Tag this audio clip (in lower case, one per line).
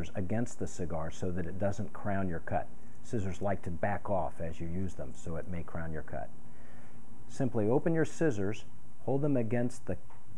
speech